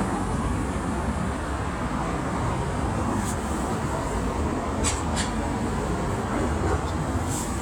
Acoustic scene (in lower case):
street